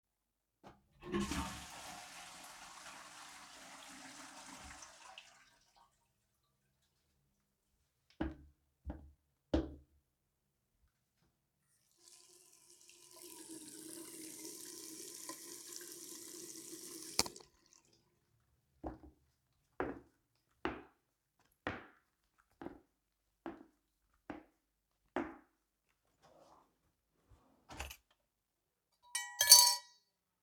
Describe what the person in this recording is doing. flushed the toilet, walked over to the sink, washed my hands and walked out of the bathroom.